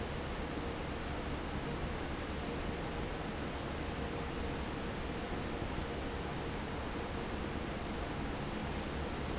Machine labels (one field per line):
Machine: fan